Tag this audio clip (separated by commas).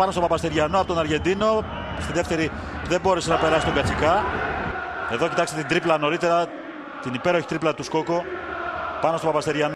Speech